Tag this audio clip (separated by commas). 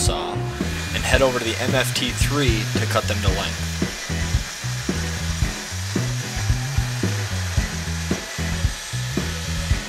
Music, Speech